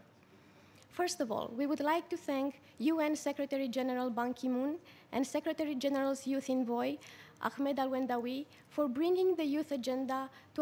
An adult female is speaking